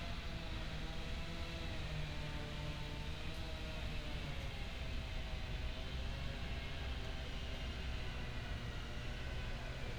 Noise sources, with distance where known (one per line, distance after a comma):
unidentified powered saw, far